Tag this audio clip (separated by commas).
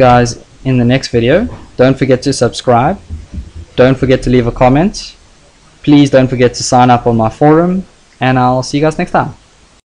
Speech